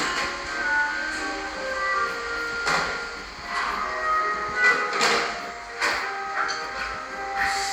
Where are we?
in a cafe